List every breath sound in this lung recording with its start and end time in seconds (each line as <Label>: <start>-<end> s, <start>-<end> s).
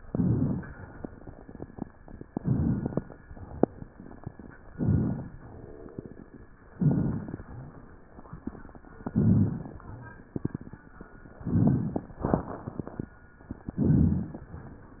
Inhalation: 0.00-0.78 s, 2.28-3.06 s, 4.69-5.35 s, 6.74-7.40 s, 9.09-9.75 s, 11.44-12.16 s, 13.76-14.48 s
Crackles: 0.00-0.78 s, 2.28-3.06 s, 4.69-5.35 s, 6.74-7.40 s, 9.09-9.75 s, 11.44-12.16 s, 13.76-14.48 s